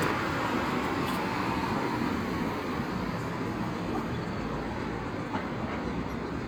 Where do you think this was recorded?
on a street